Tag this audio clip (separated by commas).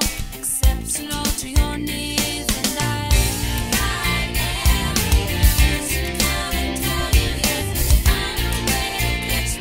Music, Country, Bluegrass